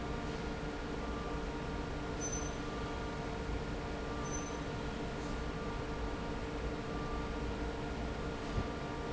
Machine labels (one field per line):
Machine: fan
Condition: normal